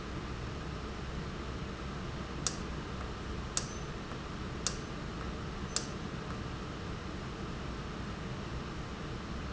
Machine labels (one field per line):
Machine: valve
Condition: normal